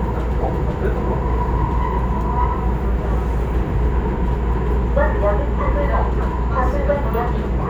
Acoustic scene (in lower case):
subway train